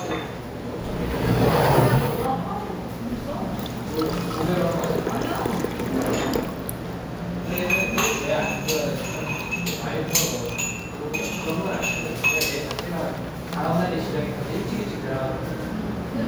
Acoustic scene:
restaurant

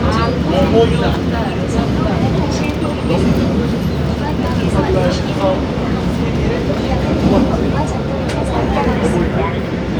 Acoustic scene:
subway train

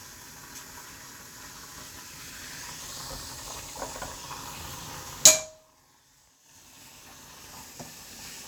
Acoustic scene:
kitchen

